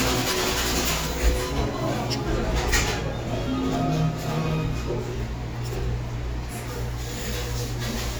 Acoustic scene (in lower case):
cafe